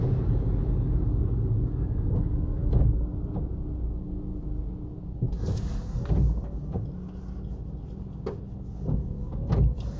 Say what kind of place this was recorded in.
car